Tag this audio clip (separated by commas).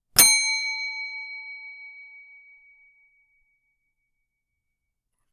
Bell